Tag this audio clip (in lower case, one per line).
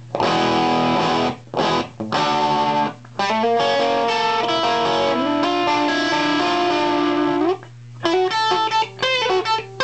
music